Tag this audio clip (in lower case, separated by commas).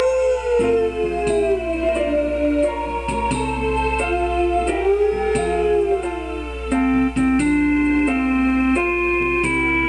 music